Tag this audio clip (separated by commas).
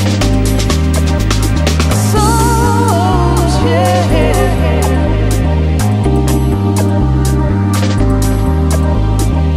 Music